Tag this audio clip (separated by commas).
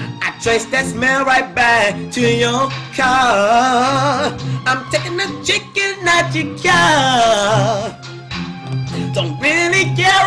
Music